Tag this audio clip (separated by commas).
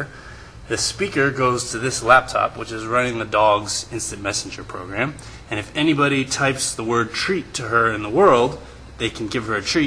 Speech